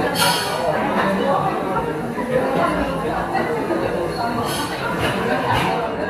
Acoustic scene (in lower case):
cafe